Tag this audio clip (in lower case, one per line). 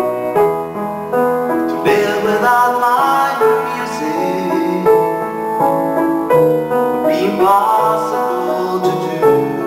music